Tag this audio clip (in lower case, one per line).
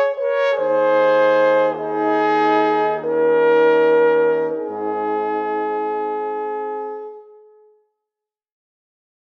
brass instrument
trumpet
french horn
trombone
playing french horn
music